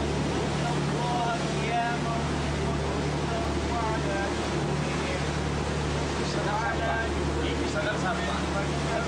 A boat motor with an adult male talking in the background